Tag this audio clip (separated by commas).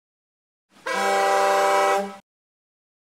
car horn, Vehicle